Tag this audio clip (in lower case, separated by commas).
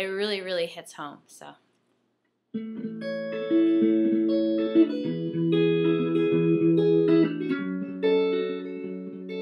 speech, music, musical instrument, guitar